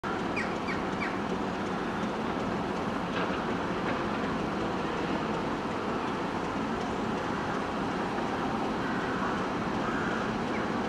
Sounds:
railroad car, train, rail transport

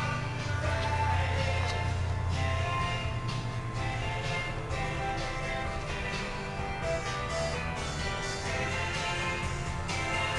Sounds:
music

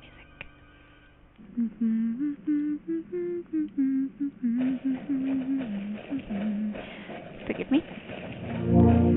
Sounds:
music, inside a large room or hall, speech

